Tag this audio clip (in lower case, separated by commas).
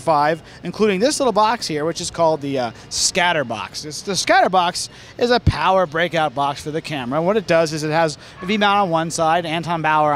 speech